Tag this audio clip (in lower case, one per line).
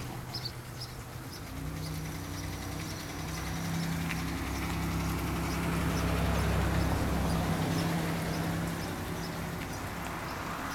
vehicle